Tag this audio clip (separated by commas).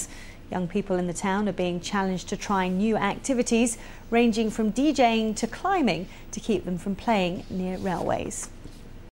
Speech